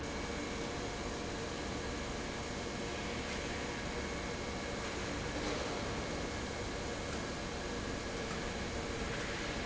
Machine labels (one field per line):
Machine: pump